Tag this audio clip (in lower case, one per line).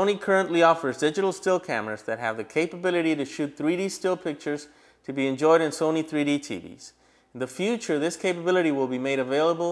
speech